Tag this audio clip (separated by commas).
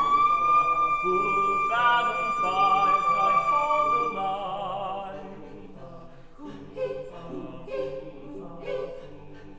Whoop, Yell, Music